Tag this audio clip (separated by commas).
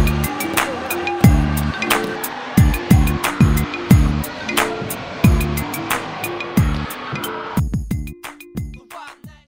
Music, Speech